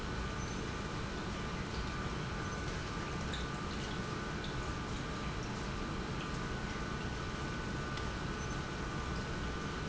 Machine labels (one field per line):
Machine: pump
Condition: normal